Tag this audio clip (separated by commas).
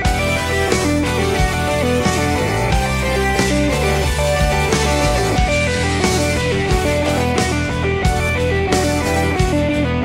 tapping guitar